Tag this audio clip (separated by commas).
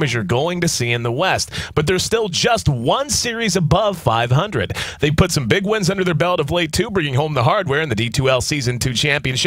Speech